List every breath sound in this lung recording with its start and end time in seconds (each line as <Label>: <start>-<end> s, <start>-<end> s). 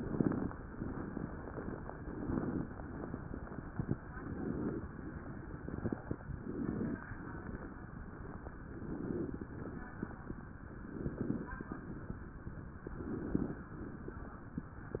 Inhalation: 1.94-2.66 s, 4.16-4.88 s, 6.30-7.02 s, 8.79-9.51 s, 10.87-11.59 s, 12.96-13.68 s